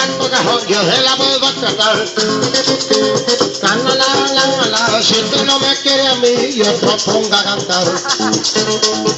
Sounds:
rattle (instrument), musical instrument, maraca, plucked string instrument, music, singing

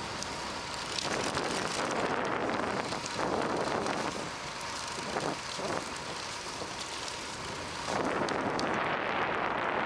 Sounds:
bicycle

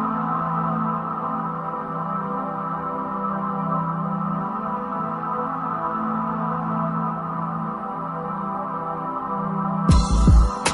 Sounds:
ambient music, music

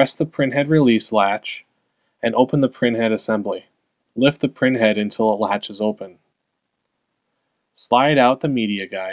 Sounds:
speech

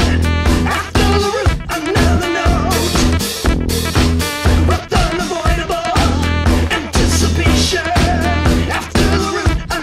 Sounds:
swing music

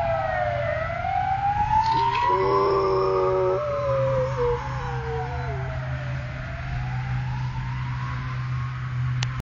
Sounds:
howl, dog, animal, domestic animals

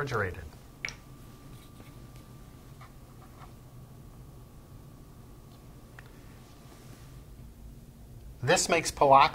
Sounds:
speech

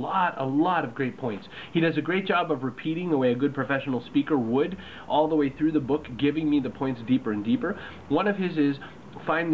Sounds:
male speech, narration, speech

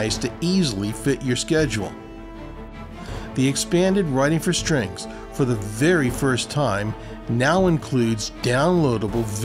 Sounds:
speech, music

